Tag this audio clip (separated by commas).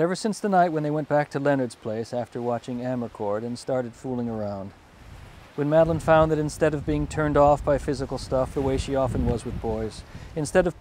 Speech